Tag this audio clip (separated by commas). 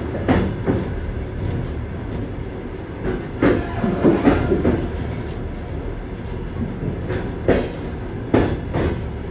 train wheels squealing